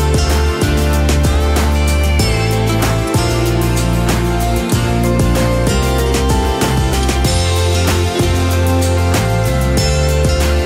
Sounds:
Music

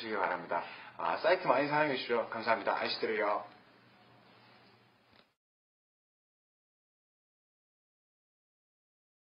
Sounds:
Speech

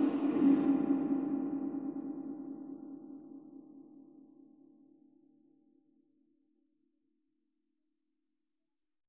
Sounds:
Sonar

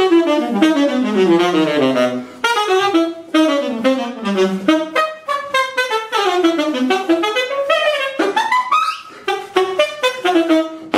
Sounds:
Wind instrument, Music

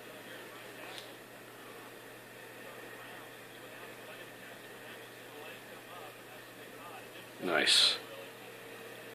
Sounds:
Speech

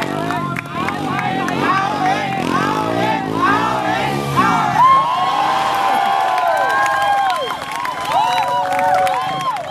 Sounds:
Speech, Vehicle

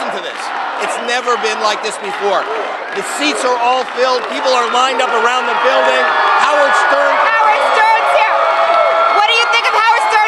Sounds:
Speech

